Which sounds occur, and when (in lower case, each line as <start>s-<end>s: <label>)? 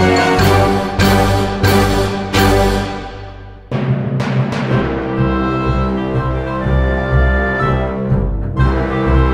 0.0s-9.3s: music